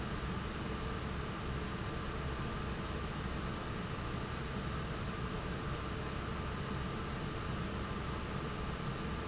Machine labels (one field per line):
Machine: fan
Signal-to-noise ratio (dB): -6 dB